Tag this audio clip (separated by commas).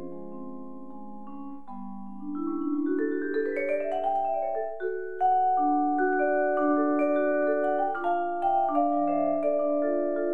playing vibraphone